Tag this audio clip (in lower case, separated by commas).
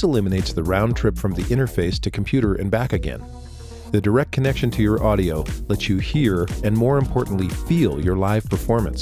music, speech